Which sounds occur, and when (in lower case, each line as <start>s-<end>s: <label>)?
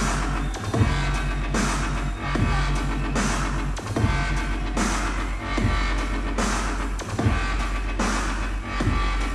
0.0s-9.3s: music